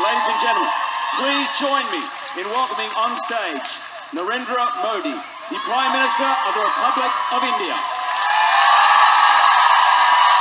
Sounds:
man speaking, monologue, Speech

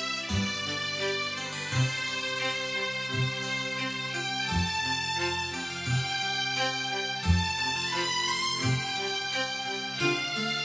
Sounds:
Music

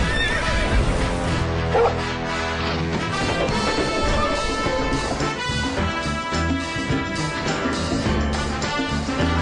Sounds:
Music, whinny, Horse, Animal

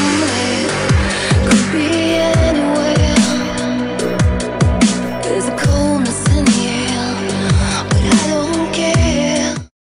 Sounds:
Music, Dubstep

